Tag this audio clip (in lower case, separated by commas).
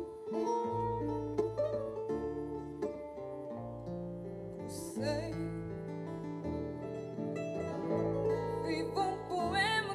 female singing, music